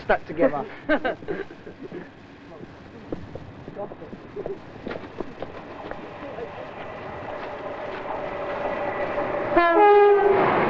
People talking in foreign language, train horn